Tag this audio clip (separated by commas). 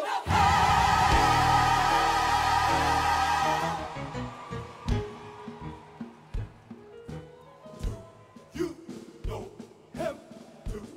Music